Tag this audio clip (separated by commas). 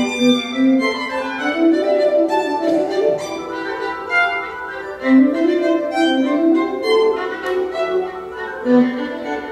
Music, Violin, Musical instrument